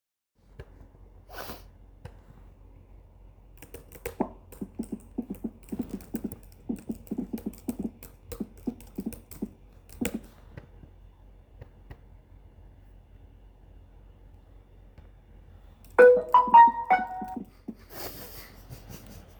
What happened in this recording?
i was working on something when my phone rang